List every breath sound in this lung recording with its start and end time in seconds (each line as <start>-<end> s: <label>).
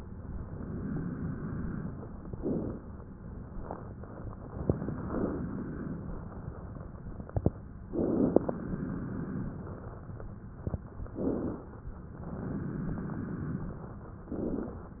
0.00-2.19 s: exhalation
2.32-2.84 s: inhalation
3.55-6.99 s: exhalation
7.93-8.58 s: inhalation
8.60-10.42 s: exhalation
11.12-11.77 s: inhalation
12.11-14.18 s: exhalation
14.31-14.90 s: inhalation